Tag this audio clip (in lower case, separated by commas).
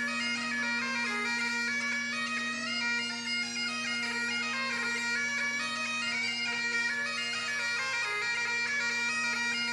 musical instrument, music, playing bagpipes, bagpipes